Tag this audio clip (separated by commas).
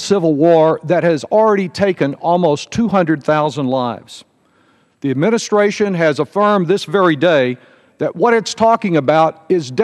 Speech, man speaking, monologue